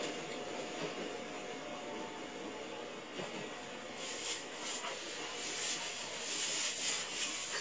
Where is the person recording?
on a subway train